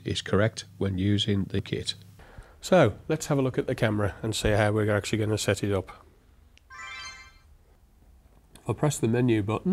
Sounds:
Single-lens reflex camera, Speech

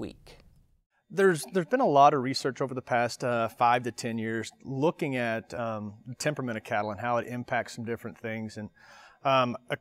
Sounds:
Speech

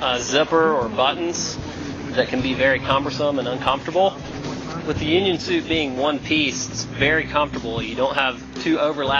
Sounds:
Speech

